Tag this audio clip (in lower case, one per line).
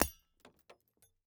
glass
shatter